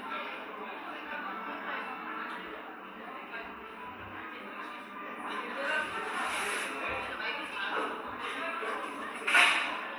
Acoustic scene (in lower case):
cafe